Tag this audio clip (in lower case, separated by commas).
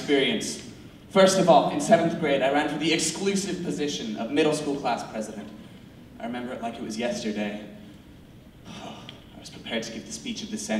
narration, male speech, speech